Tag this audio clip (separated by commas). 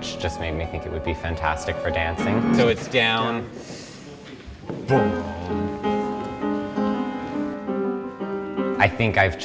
Speech, Music